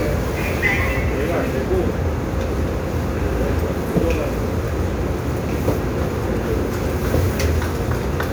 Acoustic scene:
subway train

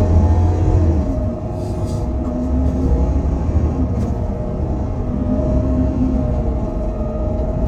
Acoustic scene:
bus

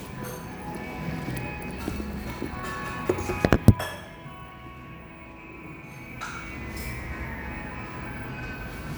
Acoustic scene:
cafe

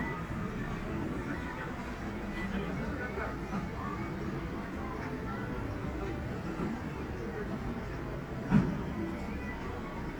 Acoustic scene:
street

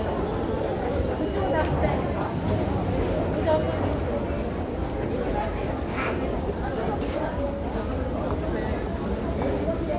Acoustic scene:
crowded indoor space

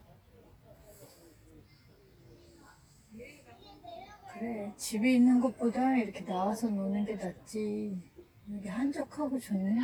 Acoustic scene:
park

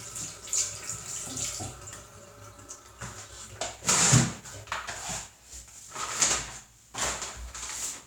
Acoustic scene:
restroom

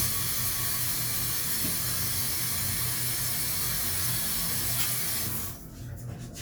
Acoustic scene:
restroom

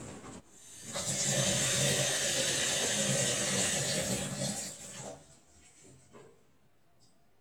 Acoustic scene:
kitchen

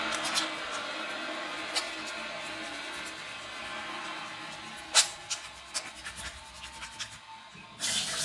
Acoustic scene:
restroom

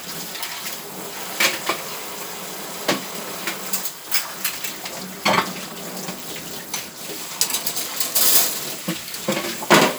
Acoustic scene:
kitchen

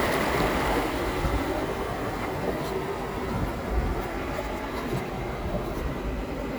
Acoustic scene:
park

